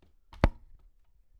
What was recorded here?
wooden cupboard opening